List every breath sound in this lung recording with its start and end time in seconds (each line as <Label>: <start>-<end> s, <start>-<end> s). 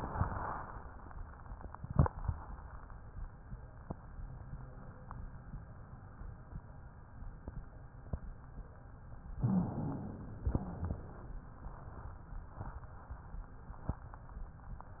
Inhalation: 9.41-10.46 s
Exhalation: 10.46-11.27 s
Wheeze: 9.39-10.12 s, 10.46-11.07 s